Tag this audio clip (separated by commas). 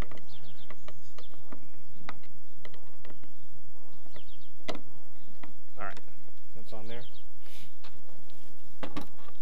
Speech